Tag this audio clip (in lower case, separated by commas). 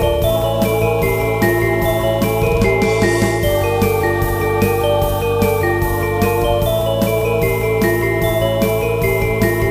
piano, keyboard (musical), electric piano